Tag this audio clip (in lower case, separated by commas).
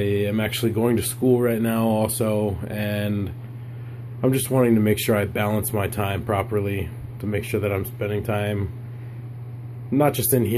speech, inside a small room